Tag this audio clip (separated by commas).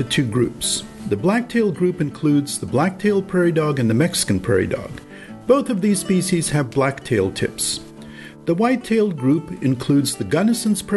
Music, Speech, Narration